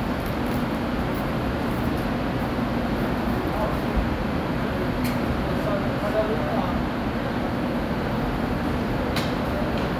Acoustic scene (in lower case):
subway station